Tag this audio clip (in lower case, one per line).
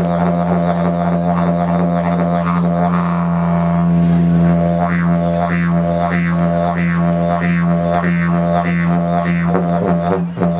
wind instrument